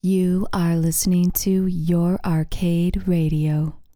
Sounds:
Human voice, Speech, Female speech

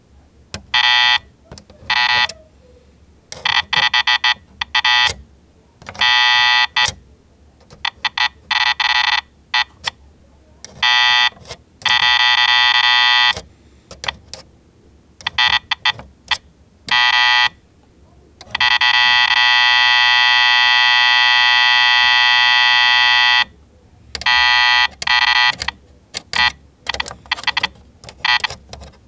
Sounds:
Alarm

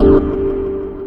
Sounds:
Musical instrument, Organ, Keyboard (musical), Music

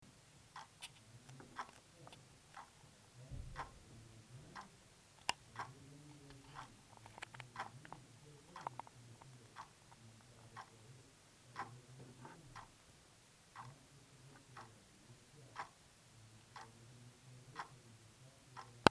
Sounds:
Mechanisms, Tick-tock, Clock

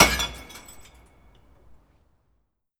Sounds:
Crushing, Shatter, Glass

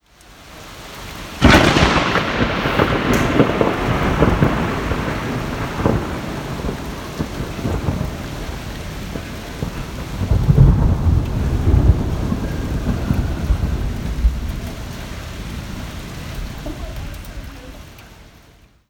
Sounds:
Thunder, Rain, Water, Thunderstorm

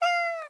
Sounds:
Cat, Animal, pets, Meow

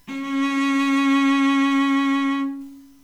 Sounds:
Bowed string instrument, Music, Musical instrument

